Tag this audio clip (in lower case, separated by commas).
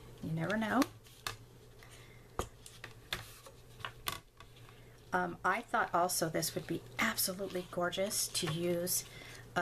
inside a small room, speech